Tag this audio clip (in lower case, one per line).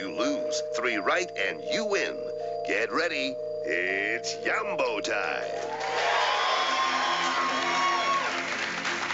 music
speech